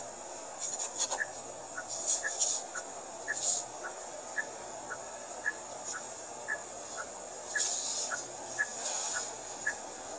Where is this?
in a car